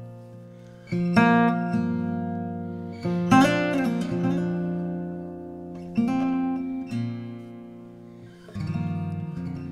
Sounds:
Strum, Acoustic guitar, Guitar, Plucked string instrument, Music, Musical instrument

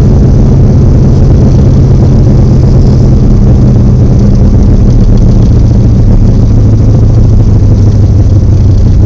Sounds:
Motor vehicle (road), Car, Vehicle

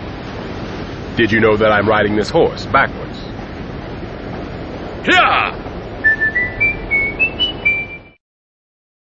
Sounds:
Music, Clip-clop, Speech

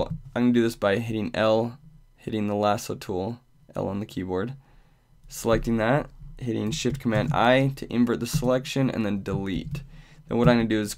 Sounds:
Speech

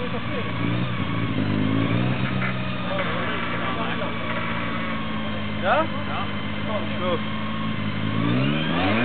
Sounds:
Speech

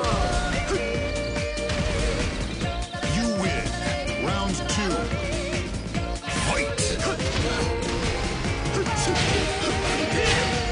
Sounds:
Music, Speech

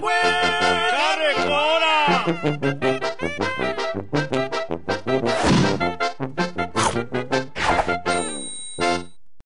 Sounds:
Music

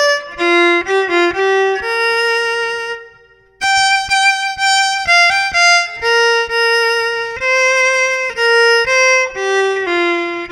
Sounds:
Musical instrument, Music, fiddle

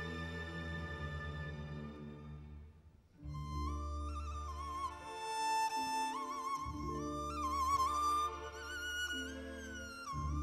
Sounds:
playing erhu

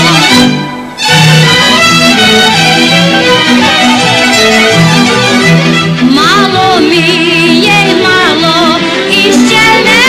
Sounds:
Music

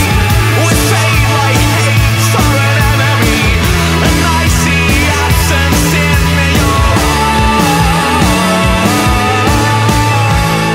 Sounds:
Music, Pop music

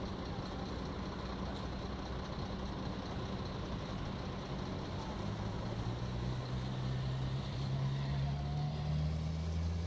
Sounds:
Vehicle, Speech, Truck

